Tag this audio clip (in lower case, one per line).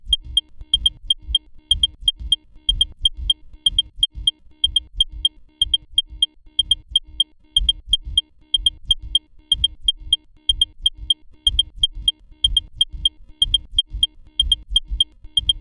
alarm